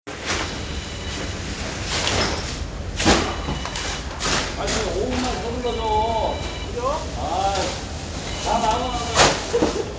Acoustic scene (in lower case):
residential area